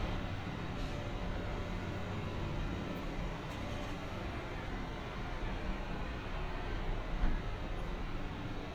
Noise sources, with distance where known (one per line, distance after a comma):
large-sounding engine, near